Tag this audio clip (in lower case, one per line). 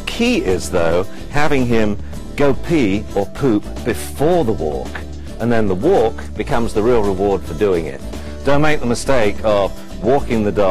speech
music